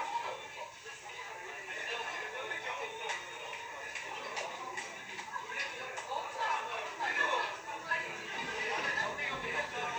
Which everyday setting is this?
restaurant